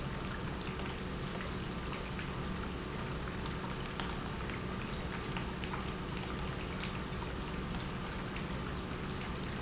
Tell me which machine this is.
pump